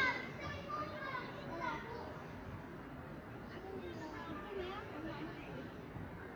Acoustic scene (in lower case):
residential area